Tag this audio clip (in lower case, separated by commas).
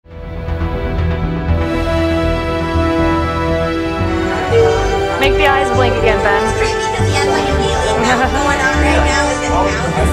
theme music, speech, music